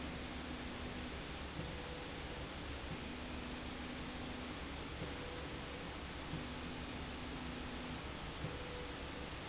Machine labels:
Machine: slide rail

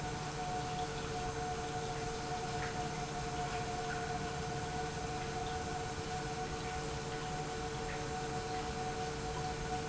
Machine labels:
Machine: pump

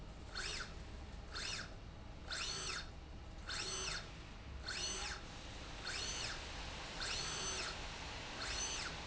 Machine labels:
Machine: slide rail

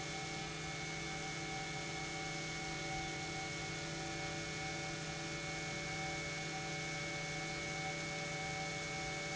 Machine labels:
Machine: pump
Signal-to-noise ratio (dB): 0 dB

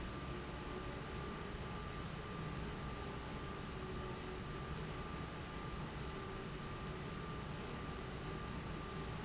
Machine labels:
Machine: fan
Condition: abnormal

